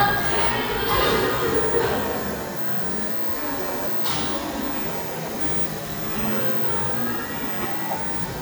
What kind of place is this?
cafe